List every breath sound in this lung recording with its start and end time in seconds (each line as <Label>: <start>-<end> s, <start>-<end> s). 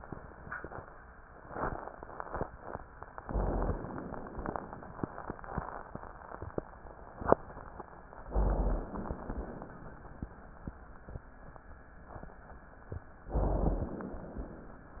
Inhalation: 3.19-4.48 s, 8.27-9.51 s, 13.34-14.50 s
Rhonchi: 3.17-3.87 s, 8.27-8.96 s, 13.34-14.02 s